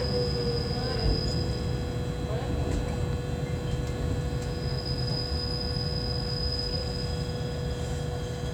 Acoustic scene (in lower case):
subway train